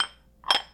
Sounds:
domestic sounds, dishes, pots and pans

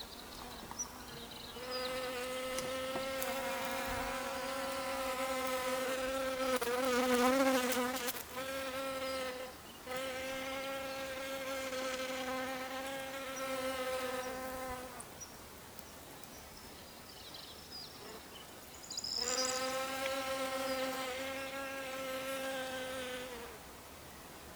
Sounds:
wild animals, animal, insect, buzz

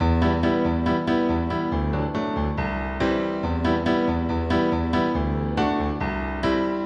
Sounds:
musical instrument, music, piano, keyboard (musical)

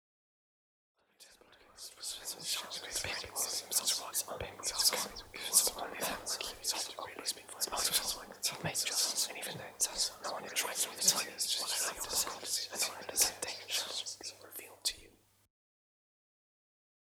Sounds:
whispering, human voice

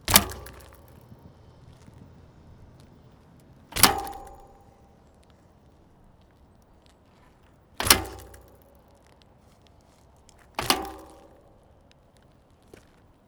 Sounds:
vehicle, thud, bicycle

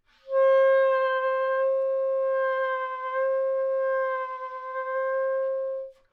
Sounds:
musical instrument, music, wind instrument

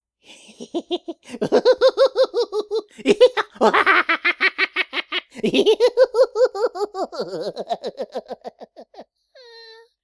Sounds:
human voice, laughter

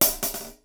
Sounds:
cymbal, hi-hat, music, musical instrument, percussion

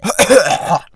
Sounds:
respiratory sounds, cough

